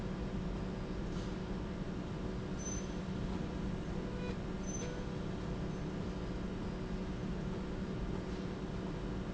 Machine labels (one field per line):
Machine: slide rail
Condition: normal